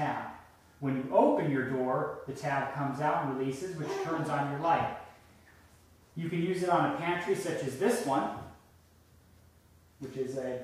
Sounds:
Speech

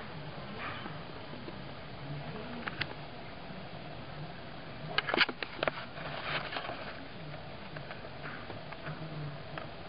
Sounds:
Animal

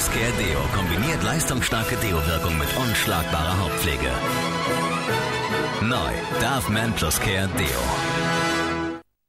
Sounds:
Speech, Music

